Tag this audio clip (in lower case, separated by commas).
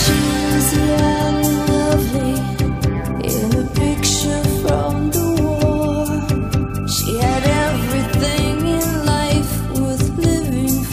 music